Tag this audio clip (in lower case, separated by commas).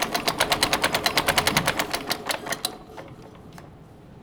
mechanisms, engine